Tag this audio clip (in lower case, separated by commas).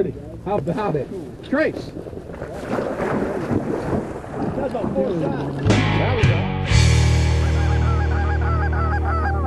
fowl, goose, honk